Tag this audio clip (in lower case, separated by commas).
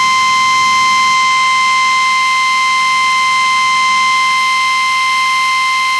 drill, tools, power tool